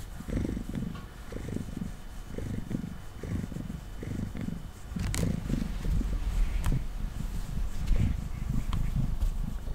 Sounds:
cat purring

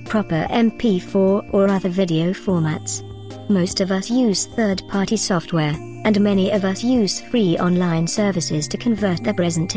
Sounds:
speech synthesizer

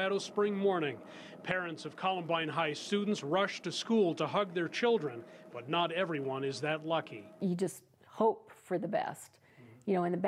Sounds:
speech

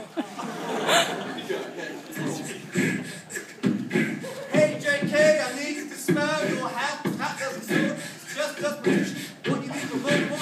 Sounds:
vocal music
speech
beatboxing

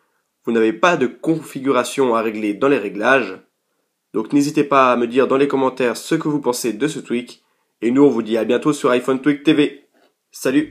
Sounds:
speech

